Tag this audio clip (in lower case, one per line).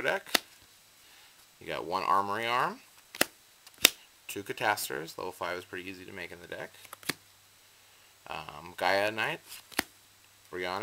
speech
inside a small room